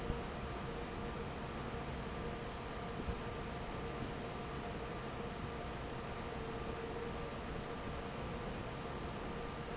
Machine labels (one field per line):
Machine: fan